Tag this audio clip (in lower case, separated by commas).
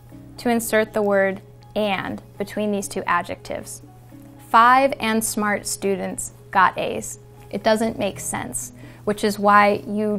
speech, music, inside a small room